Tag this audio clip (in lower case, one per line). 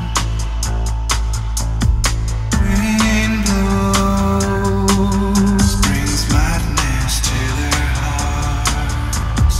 music